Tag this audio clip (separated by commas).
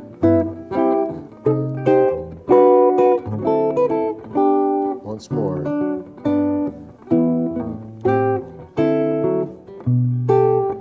Musical instrument, Music, Guitar, Speech, Plucked string instrument